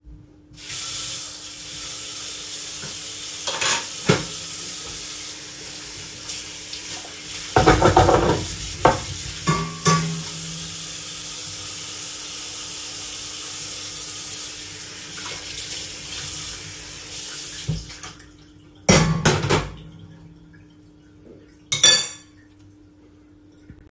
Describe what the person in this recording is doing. I turned the water, washed the dishes, turned off the water, put the dishes and a fork